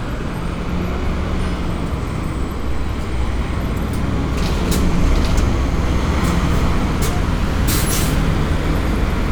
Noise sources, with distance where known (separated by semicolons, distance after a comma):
large-sounding engine, near